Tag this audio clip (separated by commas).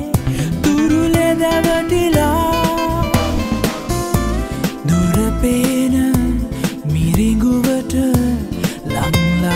Middle Eastern music, Blues, Music, Rhythm and blues